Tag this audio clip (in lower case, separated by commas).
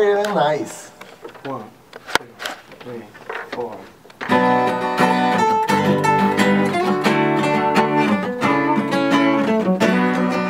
speech, music